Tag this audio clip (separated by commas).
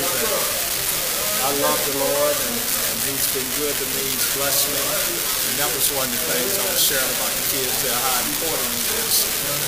Speech